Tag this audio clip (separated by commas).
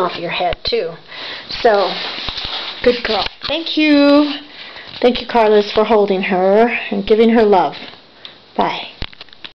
Speech